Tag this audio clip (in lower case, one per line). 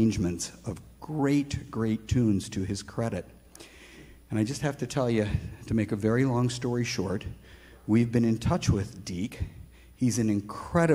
speech